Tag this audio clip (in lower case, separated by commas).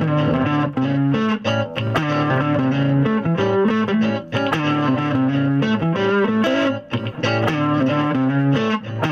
musical instrument, music, inside a small room, plucked string instrument, guitar